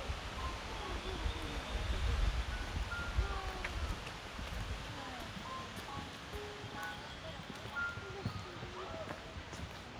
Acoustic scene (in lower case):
park